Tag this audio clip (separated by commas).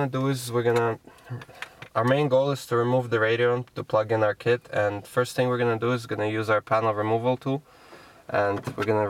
Speech